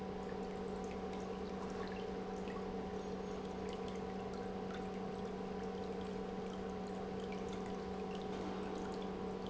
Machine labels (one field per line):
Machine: pump